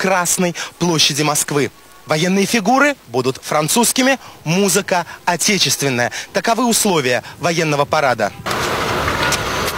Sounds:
Speech

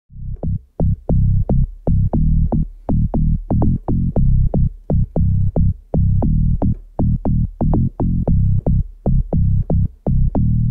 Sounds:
Synthesizer, playing synthesizer, Throbbing, Musical instrument, Music

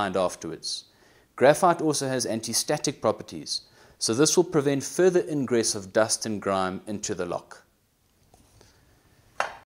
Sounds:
Speech

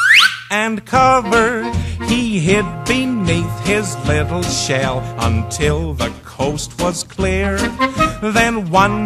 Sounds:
Music

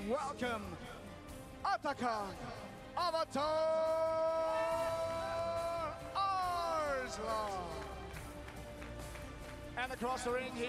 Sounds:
Music, Speech

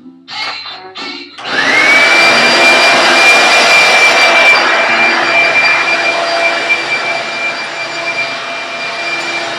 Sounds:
inside a small room

